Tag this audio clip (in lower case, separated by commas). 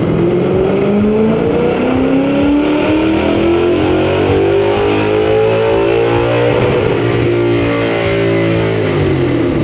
medium engine (mid frequency), engine, revving, car, vehicle